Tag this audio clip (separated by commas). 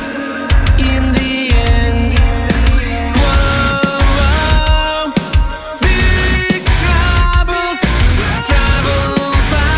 Pop music, Rock and roll, Heavy metal, Exciting music, Music